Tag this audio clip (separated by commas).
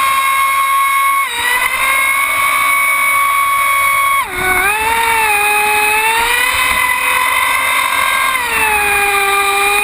Boat, Vehicle, Motorboat